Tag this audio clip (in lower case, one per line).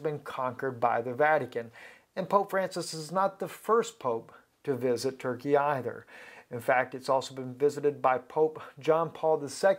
speech